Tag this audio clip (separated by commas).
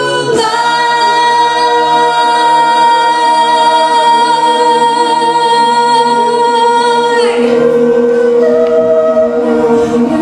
Singing, Choir, A capella, Music